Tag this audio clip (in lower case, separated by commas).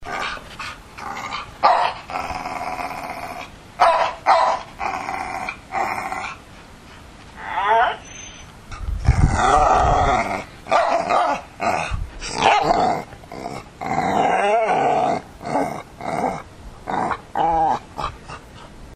bark, dog, animal, pets, growling